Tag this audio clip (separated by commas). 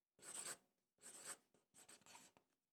home sounds, Writing